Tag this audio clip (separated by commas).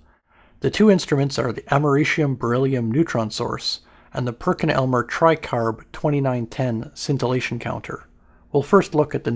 Speech